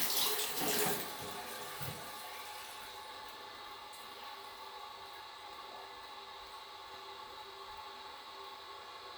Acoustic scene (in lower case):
restroom